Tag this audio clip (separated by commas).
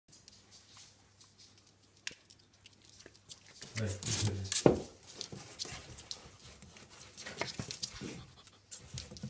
ferret dooking